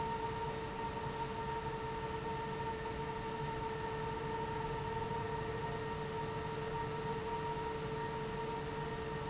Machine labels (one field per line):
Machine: fan